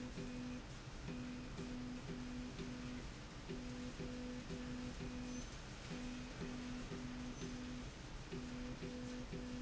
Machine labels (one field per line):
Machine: slide rail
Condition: normal